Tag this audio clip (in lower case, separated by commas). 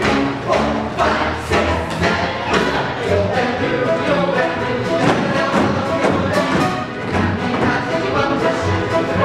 bang, music